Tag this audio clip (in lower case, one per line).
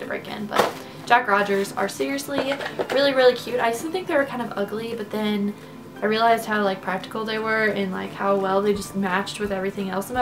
speech
music